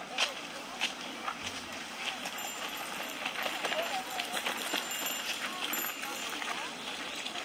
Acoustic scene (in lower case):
park